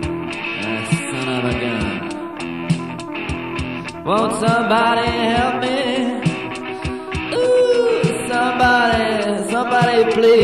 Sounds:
music

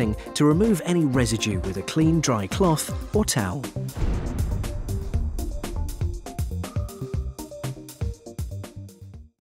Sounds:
music
speech

